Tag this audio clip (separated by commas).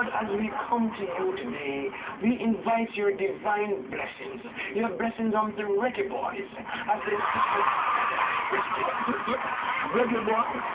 Speech